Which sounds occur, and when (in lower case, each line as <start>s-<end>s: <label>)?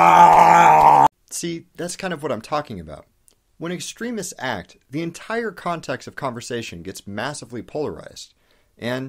0.0s-1.0s: grunt
1.1s-9.0s: background noise
1.2s-1.6s: man speaking
1.7s-3.0s: man speaking
3.2s-3.3s: tick
3.6s-4.6s: man speaking
4.7s-4.8s: tick
4.9s-8.3s: man speaking
8.4s-8.7s: breathing